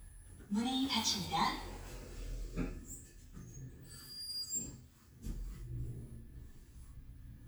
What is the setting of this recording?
elevator